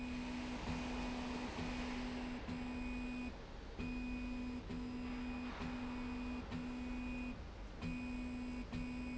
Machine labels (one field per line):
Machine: slide rail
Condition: normal